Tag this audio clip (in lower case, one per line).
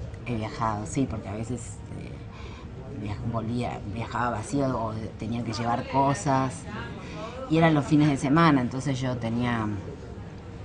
speech